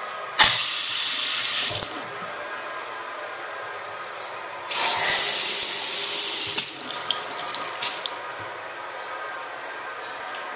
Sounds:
sink (filling or washing), water tap

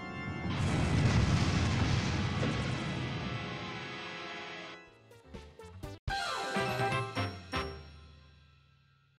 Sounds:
music

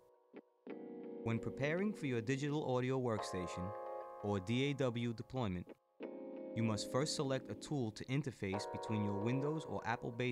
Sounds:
speech, music

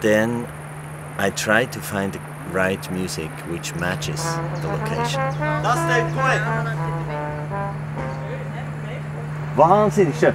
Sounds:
speech

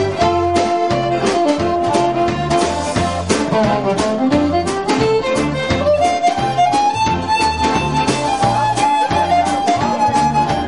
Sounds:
pop music, music

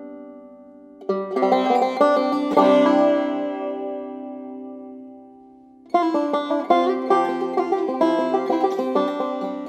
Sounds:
playing banjo

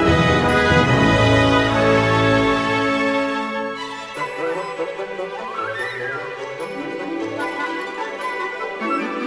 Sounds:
music, musical instrument, fiddle

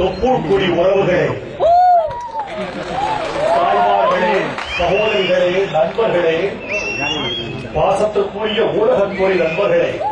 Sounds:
man speaking, speech, monologue

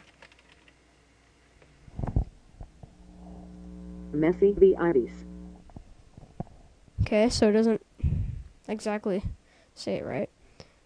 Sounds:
speech synthesizer, speech

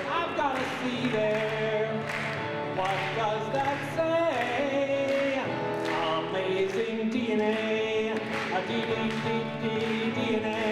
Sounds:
music, male singing

